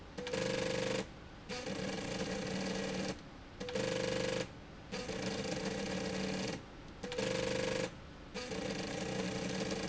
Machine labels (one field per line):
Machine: slide rail